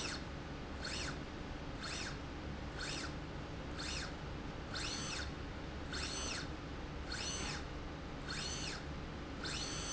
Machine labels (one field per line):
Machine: slide rail